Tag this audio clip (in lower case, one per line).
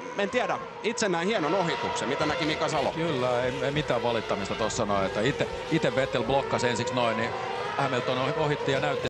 speech